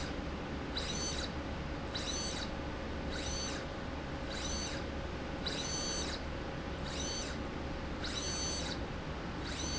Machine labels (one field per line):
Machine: slide rail